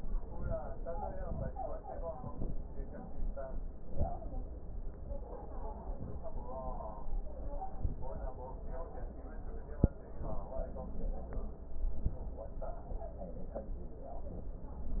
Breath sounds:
2.14-2.68 s: inhalation
3.84-4.38 s: inhalation
5.86-6.40 s: inhalation
7.58-8.12 s: inhalation
11.69-12.23 s: inhalation
14.19-14.74 s: inhalation

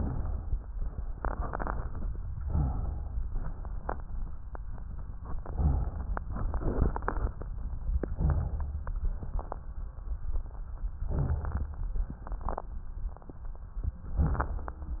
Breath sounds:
2.39-3.16 s: inhalation
3.17-4.38 s: exhalation
5.60-6.31 s: inhalation
7.85-8.93 s: inhalation
8.95-9.76 s: exhalation
10.97-12.01 s: inhalation
12.00-12.74 s: exhalation
13.97-14.77 s: inhalation

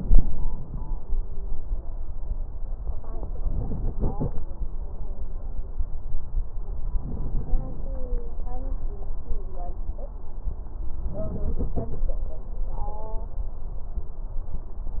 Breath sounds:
3.44-4.39 s: inhalation
6.96-7.91 s: inhalation
11.08-12.03 s: inhalation

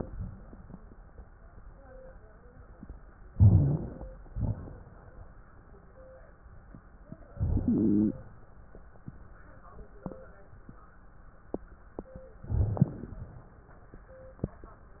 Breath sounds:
3.30-4.29 s: crackles
3.32-4.31 s: inhalation
4.30-5.30 s: exhalation
4.30-5.30 s: crackles
7.30-8.20 s: inhalation
7.30-8.20 s: crackles
12.44-13.33 s: inhalation
12.44-13.33 s: crackles

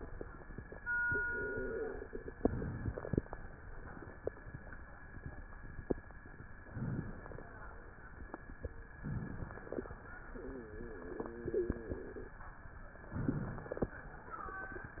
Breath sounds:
2.37-3.13 s: inhalation
6.74-7.59 s: inhalation
9.09-9.94 s: inhalation
13.17-14.02 s: inhalation

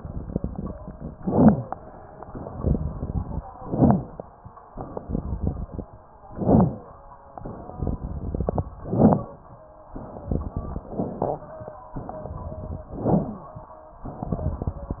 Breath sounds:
0.00-1.08 s: exhalation
0.00-1.08 s: crackles
1.12-1.73 s: inhalation
1.12-1.73 s: crackles
2.24-3.40 s: exhalation
2.24-3.40 s: crackles
3.51-4.12 s: inhalation
3.51-4.12 s: crackles
4.71-5.86 s: exhalation
4.71-5.86 s: crackles
6.30-6.91 s: inhalation
6.30-6.91 s: crackles
7.36-8.63 s: exhalation
7.36-8.63 s: crackles
8.77-9.37 s: inhalation
8.77-9.37 s: crackles
9.92-10.87 s: exhalation
9.92-10.87 s: crackles
10.91-11.52 s: inhalation
10.91-11.52 s: crackles
11.93-12.88 s: exhalation
11.93-12.88 s: crackles
12.90-13.51 s: inhalation
12.90-13.51 s: crackles
14.06-15.00 s: exhalation
14.06-15.00 s: crackles

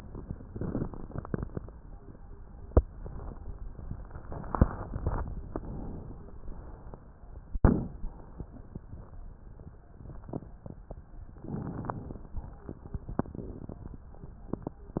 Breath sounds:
5.52-6.36 s: inhalation
6.36-7.02 s: exhalation
11.42-12.35 s: inhalation
12.43-13.05 s: exhalation

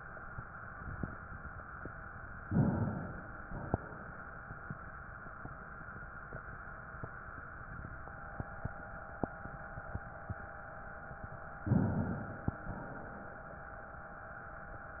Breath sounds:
2.44-3.39 s: inhalation
3.40-4.35 s: exhalation
11.60-12.54 s: inhalation
12.58-13.84 s: exhalation

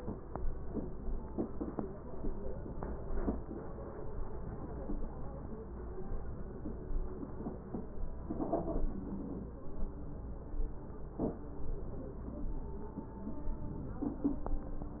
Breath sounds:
13.58-14.43 s: inhalation

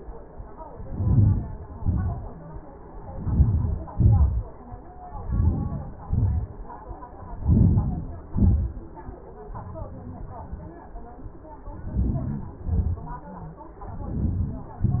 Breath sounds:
0.74-1.43 s: inhalation
1.48-2.17 s: exhalation
3.04-3.89 s: inhalation
3.89-4.63 s: exhalation
5.10-5.90 s: inhalation
5.92-6.72 s: exhalation
7.27-8.10 s: inhalation
8.14-8.86 s: exhalation
11.61-12.42 s: inhalation
12.41-13.22 s: exhalation
13.79-14.64 s: inhalation
14.68-15.00 s: exhalation

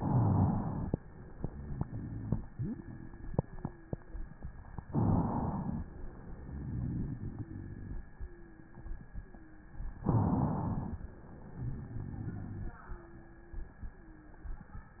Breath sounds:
0.00-0.52 s: rhonchi
0.00-0.93 s: inhalation
1.36-2.13 s: rhonchi
2.53-3.29 s: wheeze
3.35-4.12 s: wheeze
4.86-5.78 s: inhalation
6.48-7.97 s: exhalation
8.15-9.04 s: wheeze
9.23-9.86 s: wheeze
10.04-10.96 s: inhalation
11.52-12.77 s: exhalation
12.85-13.77 s: wheeze
13.91-14.48 s: wheeze

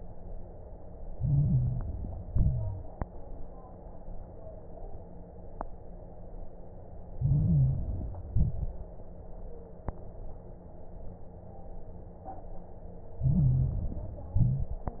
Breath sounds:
1.08-2.22 s: inhalation
1.08-2.22 s: crackles
2.22-2.90 s: exhalation
7.14-8.28 s: inhalation
7.14-8.28 s: crackles
8.27-8.95 s: exhalation
8.28-8.95 s: crackles
13.21-14.35 s: inhalation
13.21-14.35 s: crackles
14.37-15.00 s: exhalation
14.37-15.00 s: crackles

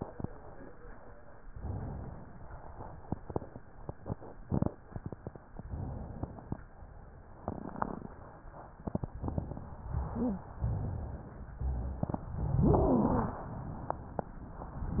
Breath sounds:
1.51-2.47 s: inhalation
2.45-3.05 s: exhalation
5.58-6.55 s: inhalation
6.54-7.29 s: exhalation
9.15-9.90 s: inhalation
10.08-10.46 s: wheeze
10.56-11.30 s: rhonchi
10.56-11.56 s: inhalation
11.57-12.37 s: exhalation
11.57-12.37 s: rhonchi
12.53-13.41 s: inhalation
12.53-13.41 s: wheeze

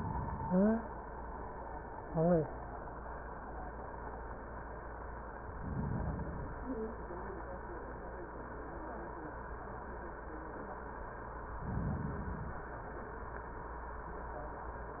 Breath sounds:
5.34-6.68 s: inhalation
11.49-12.75 s: inhalation

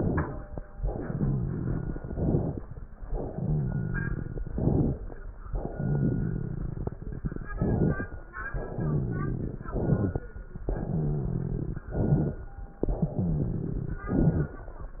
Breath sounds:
0.74-2.01 s: exhalation
0.74-2.01 s: rhonchi
1.99-2.66 s: inhalation
3.19-4.48 s: exhalation
3.19-4.48 s: rhonchi
4.52-5.18 s: inhalation
5.69-6.98 s: exhalation
5.69-6.98 s: rhonchi
7.55-8.22 s: inhalation
8.52-9.70 s: exhalation
8.52-9.70 s: rhonchi
9.71-10.34 s: inhalation
10.65-11.88 s: exhalation
10.65-11.88 s: rhonchi
11.94-12.56 s: inhalation
12.87-14.10 s: exhalation
12.87-14.10 s: rhonchi
14.10-14.72 s: inhalation

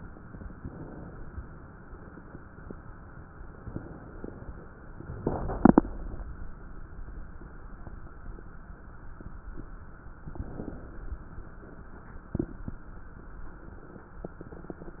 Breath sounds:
0.00-1.81 s: inhalation
3.31-4.96 s: crackles
3.33-4.98 s: inhalation
10.20-11.85 s: inhalation
10.20-11.85 s: crackles

